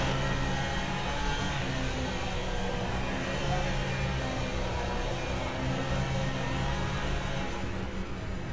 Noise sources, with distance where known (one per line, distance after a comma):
unidentified powered saw